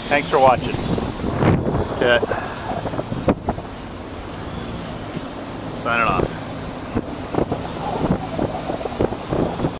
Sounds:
wind noise, Boat, Vehicle, outside, rural or natural, Speech, Wind noise (microphone), Rustle, Wind

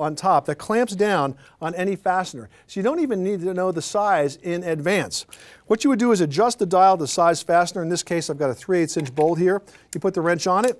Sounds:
Speech

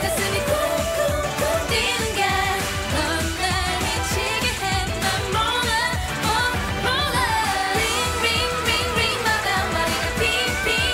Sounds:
Singing, Music of Asia

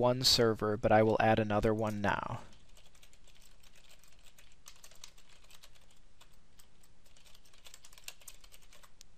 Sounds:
Typing

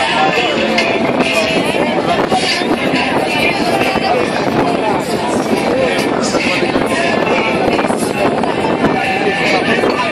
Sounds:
Speech

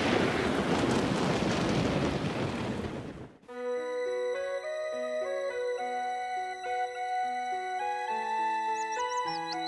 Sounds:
outside, rural or natural, Music

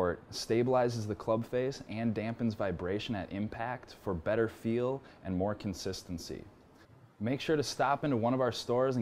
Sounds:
Speech

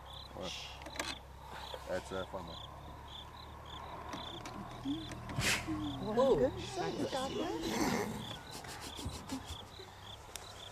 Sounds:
Speech

